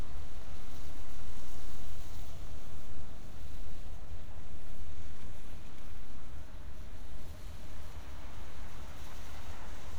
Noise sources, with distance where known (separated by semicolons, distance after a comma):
background noise